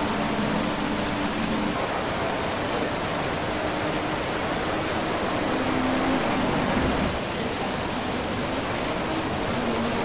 A car driving down the road in the rain